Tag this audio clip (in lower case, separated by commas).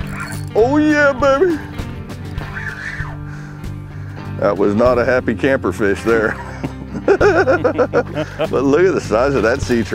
mosquito buzzing